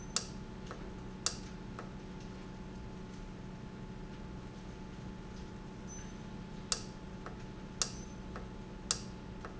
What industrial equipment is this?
valve